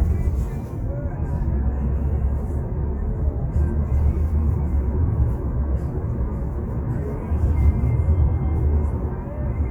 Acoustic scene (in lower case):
car